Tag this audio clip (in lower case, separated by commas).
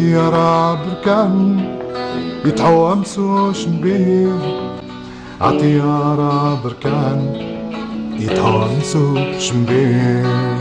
music, blues, singing, guitar, musical instrument, bowed string instrument